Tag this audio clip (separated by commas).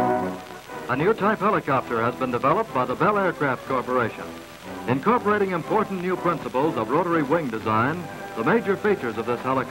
Speech, Music